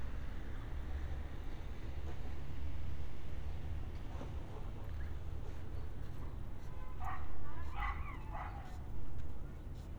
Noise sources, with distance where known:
unidentified human voice
dog barking or whining

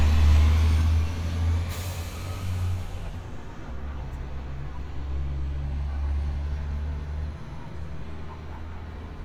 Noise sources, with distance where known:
large-sounding engine

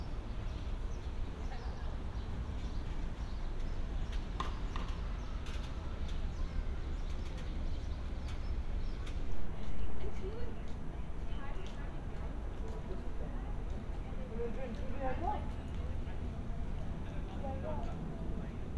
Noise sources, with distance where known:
person or small group talking

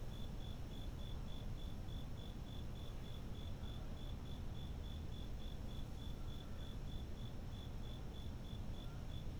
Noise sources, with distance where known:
background noise

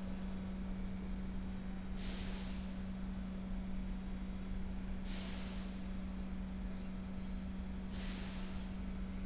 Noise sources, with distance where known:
background noise

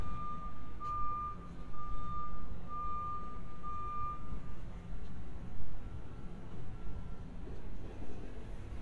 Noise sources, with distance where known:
reverse beeper

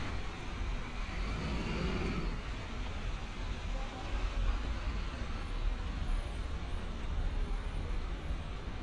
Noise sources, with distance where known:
large-sounding engine

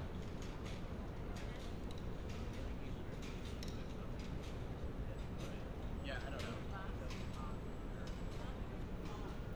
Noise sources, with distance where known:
person or small group talking

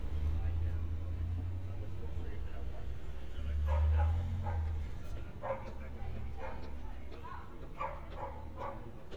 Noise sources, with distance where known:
person or small group talking
dog barking or whining, near

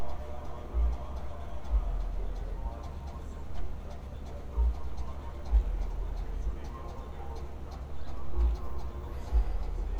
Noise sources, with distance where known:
engine of unclear size
music from an unclear source

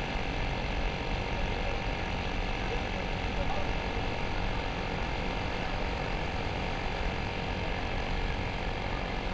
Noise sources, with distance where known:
small-sounding engine, near

